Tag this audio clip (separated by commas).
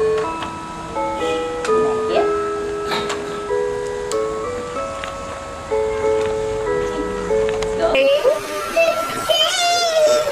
Music, Child speech, Speech, inside a small room